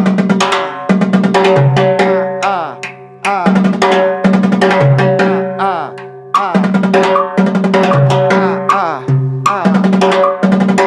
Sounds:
playing timbales

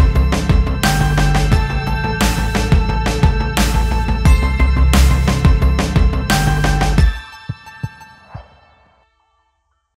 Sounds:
music

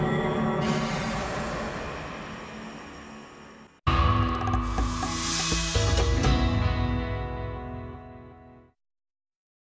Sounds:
music

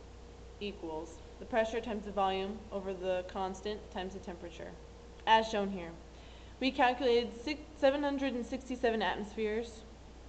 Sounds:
speech

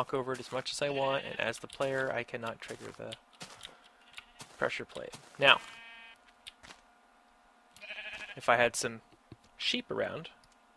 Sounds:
speech

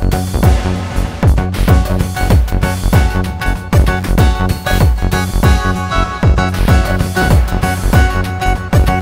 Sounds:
music

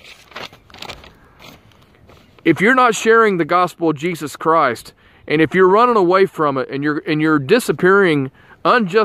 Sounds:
speech
outside, rural or natural

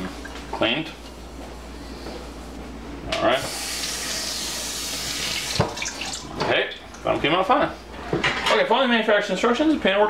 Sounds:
speech

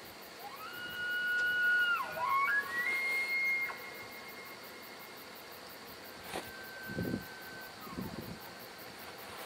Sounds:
elk bugling

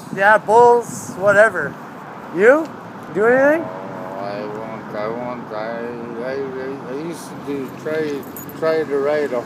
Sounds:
speech

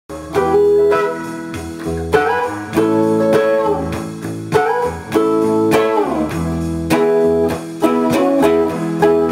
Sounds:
plucked string instrument
blues
music
musical instrument
guitar

